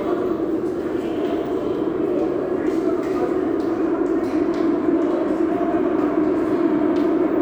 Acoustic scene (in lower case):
subway station